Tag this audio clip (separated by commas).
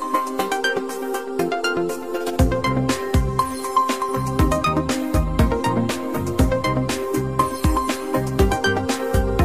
Music